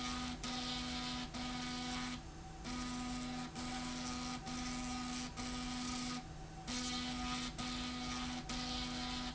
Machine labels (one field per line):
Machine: slide rail